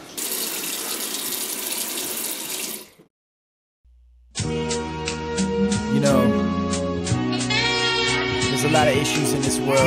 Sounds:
speech
inside a small room
music
sink (filling or washing)

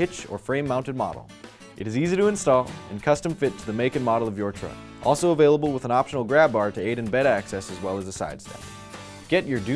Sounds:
speech
music

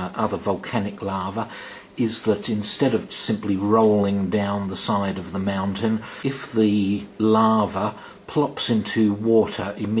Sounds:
speech

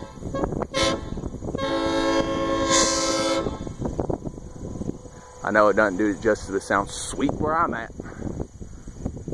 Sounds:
speech

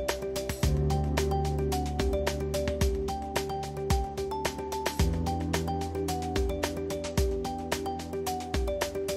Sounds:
music

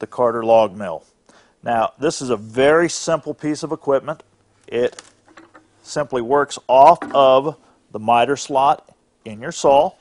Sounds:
speech

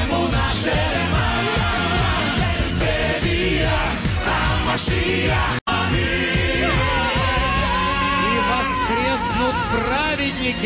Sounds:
music
male singing

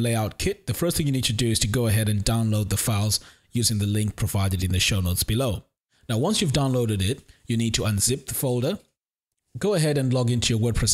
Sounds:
speech

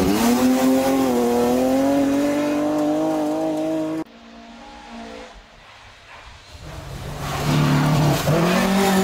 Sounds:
race car
vehicle
car

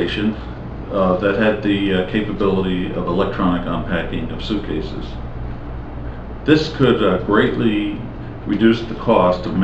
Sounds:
speech

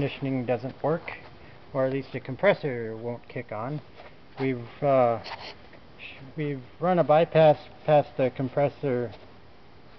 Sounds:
speech

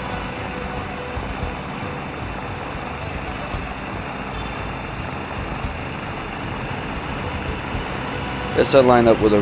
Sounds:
vehicle

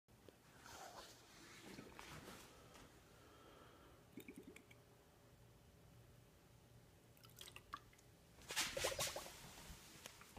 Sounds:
silence
inside a small room

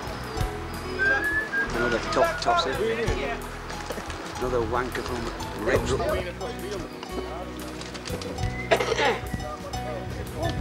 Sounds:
music
speech

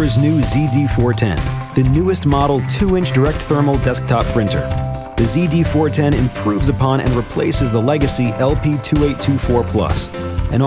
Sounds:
speech
music

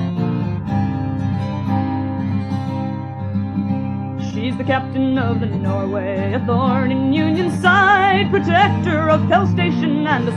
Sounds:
music

